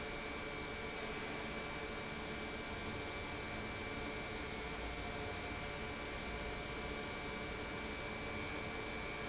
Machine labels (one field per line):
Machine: pump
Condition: normal